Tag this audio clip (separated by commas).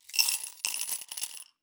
Domestic sounds, Coin (dropping), Glass